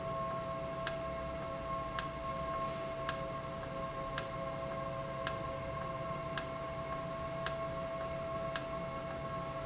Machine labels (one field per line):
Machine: valve